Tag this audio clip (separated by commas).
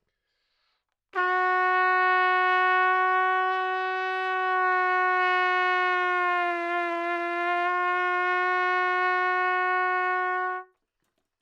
Music, Brass instrument, Musical instrument, Trumpet